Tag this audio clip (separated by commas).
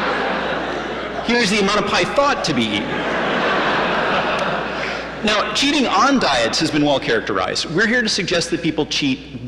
Speech